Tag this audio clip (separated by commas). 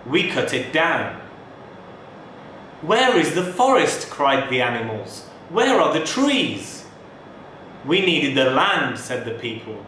monologue, Male speech, Speech